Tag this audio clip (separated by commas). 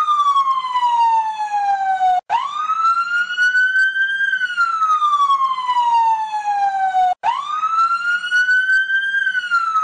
Police car (siren), outside, urban or man-made, Siren